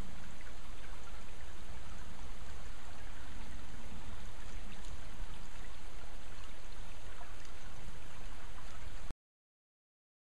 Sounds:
stream burbling

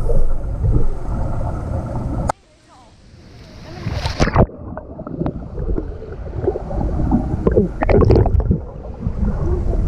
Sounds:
swimming

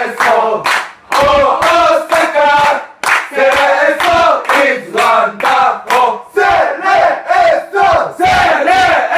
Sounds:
crowd, battle cry

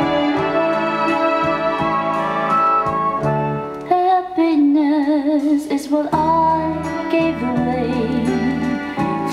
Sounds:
music, inside a small room

